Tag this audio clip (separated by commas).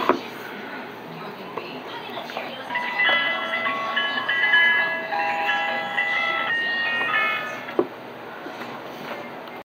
Television, Rustle, Sound effect, Speech